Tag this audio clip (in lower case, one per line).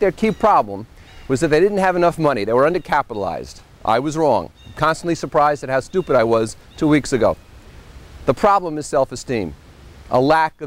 speech